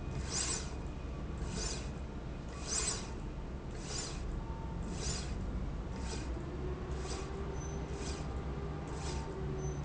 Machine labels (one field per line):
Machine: slide rail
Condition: normal